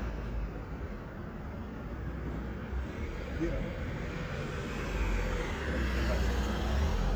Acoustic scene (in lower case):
residential area